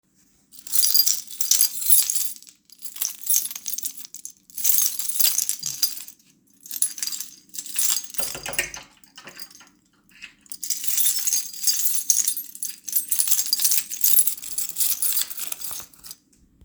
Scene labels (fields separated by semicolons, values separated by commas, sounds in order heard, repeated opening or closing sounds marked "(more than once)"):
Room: bedroom; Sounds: keys, door